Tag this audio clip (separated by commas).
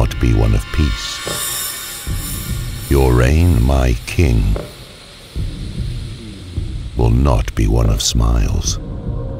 Music, Speech